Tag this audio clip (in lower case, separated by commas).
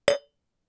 clink, glass